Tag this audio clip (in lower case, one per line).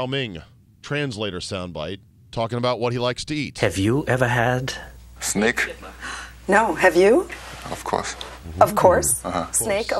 speech